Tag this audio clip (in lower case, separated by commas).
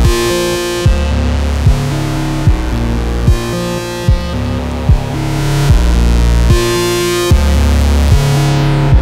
sampler, music